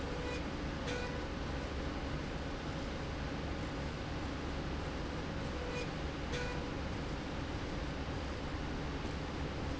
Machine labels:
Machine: slide rail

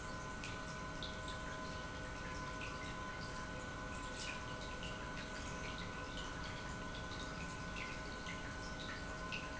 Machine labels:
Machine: pump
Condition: normal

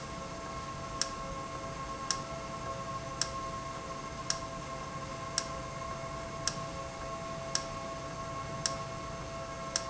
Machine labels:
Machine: valve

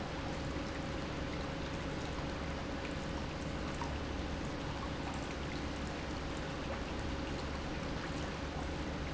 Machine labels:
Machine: pump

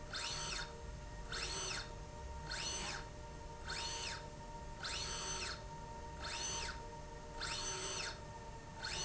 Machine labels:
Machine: slide rail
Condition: normal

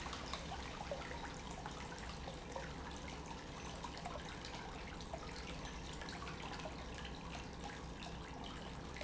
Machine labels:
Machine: pump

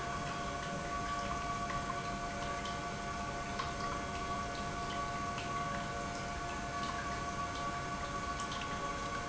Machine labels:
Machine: pump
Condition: normal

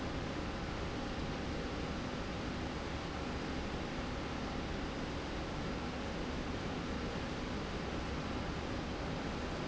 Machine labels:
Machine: slide rail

